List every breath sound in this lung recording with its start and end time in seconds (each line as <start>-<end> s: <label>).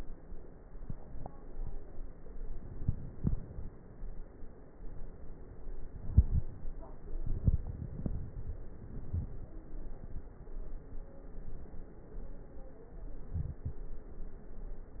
2.67-3.74 s: inhalation
2.67-3.74 s: crackles
5.81-6.55 s: inhalation
5.81-6.55 s: crackles
7.13-8.30 s: exhalation
7.13-8.30 s: crackles
13.25-13.86 s: inhalation
13.25-13.86 s: crackles